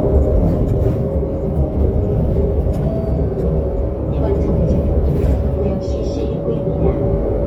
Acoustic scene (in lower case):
bus